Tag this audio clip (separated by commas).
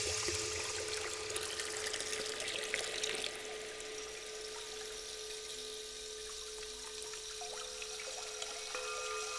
Water, faucet, Sink (filling or washing)